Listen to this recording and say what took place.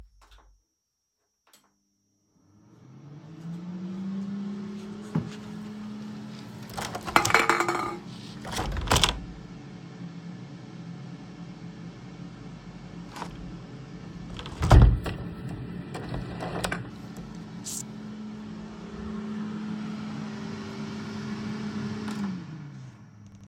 I started the coffee machine to brew a cup. While it was running I walked over and opened the kitchen window.